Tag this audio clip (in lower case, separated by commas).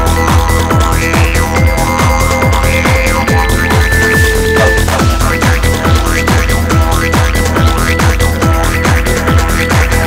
soundtrack music, music, didgeridoo